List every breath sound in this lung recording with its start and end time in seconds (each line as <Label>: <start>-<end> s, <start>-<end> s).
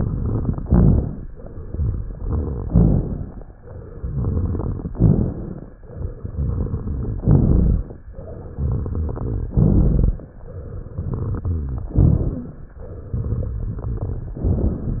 Inhalation: 0.00-0.59 s, 1.40-2.64 s, 3.62-4.86 s, 5.90-7.14 s, 8.16-9.47 s, 10.57-11.88 s, 12.90-14.33 s
Exhalation: 0.65-1.24 s, 2.69-3.53 s, 4.95-5.74 s, 7.25-8.04 s, 9.54-10.33 s, 11.95-12.74 s, 14.42-15.00 s
Crackles: 0.00-0.59 s, 0.65-1.24 s, 1.40-2.64 s, 2.69-3.53 s, 3.62-4.86 s, 4.95-5.74 s, 5.90-7.14 s, 7.25-8.04 s, 8.16-9.47 s, 9.54-10.33 s, 10.57-11.88 s, 11.95-12.74 s, 12.90-14.33 s, 14.42-15.00 s